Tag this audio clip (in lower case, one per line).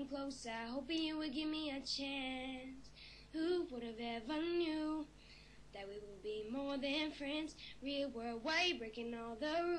child singing